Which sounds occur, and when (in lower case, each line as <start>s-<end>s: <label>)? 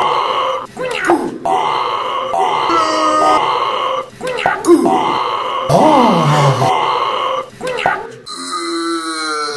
0.0s-9.5s: background noise
7.6s-8.2s: human voice
8.2s-9.5s: eructation